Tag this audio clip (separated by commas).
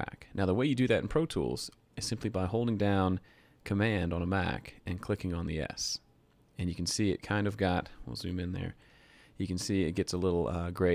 Speech